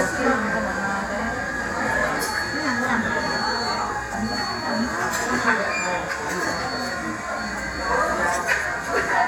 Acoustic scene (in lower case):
cafe